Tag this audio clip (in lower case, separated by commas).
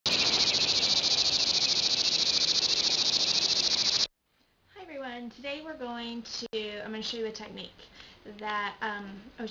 speech